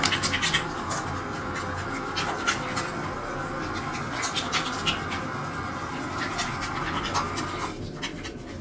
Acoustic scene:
restroom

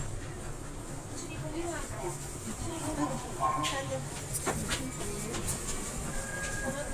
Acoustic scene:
subway train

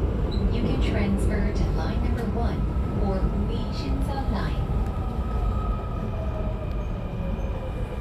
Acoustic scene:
subway train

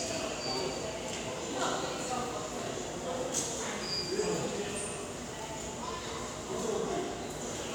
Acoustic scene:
subway station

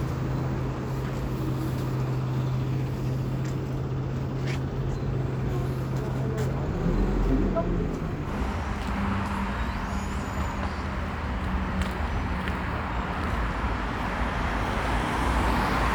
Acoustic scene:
street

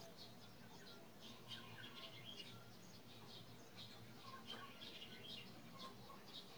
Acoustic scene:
park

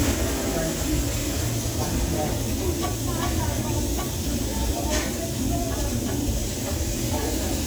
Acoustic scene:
restaurant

